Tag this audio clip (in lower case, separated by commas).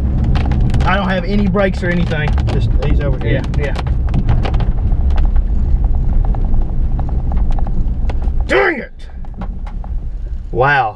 speech, car, vehicle